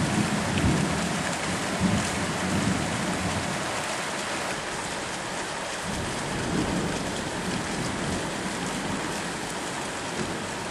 Sound of falling rain with thunder in the background